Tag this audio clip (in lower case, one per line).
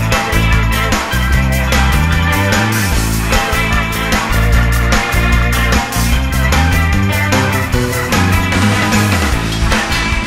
theme music
music